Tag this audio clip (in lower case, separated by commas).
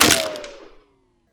explosion, gunshot